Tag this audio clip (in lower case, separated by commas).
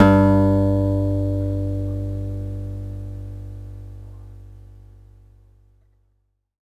music, acoustic guitar, guitar, plucked string instrument, musical instrument